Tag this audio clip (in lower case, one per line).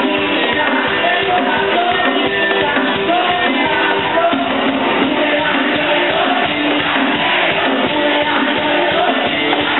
music